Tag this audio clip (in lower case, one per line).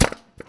tools